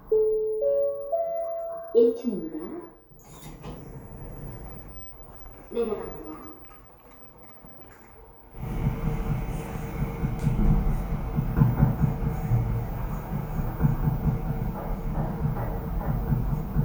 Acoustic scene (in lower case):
elevator